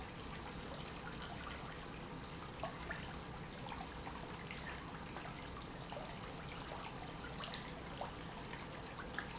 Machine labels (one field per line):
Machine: pump